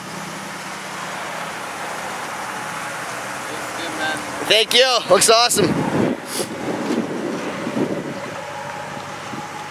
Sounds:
vehicle, car, speech

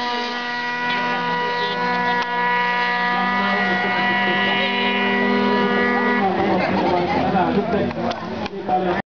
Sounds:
speech

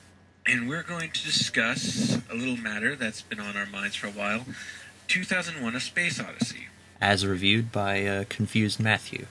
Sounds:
speech

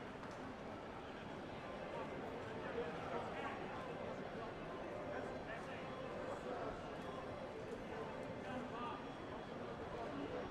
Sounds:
speech

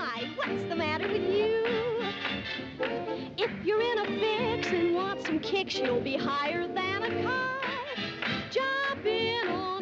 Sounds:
music

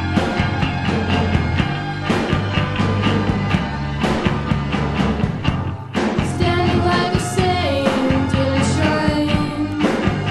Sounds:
music

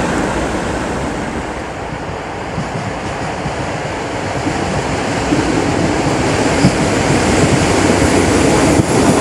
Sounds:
rail transport, subway, train, train wagon, clickety-clack

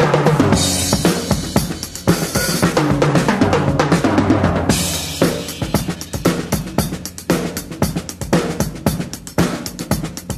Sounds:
drum, rimshot, percussion, snare drum, drum kit, bass drum

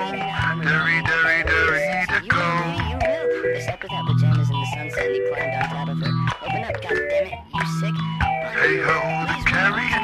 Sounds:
speech, music

